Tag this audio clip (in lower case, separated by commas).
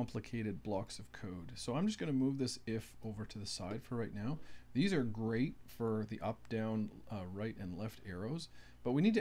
speech